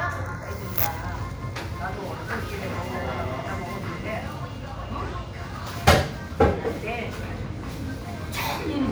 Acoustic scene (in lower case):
crowded indoor space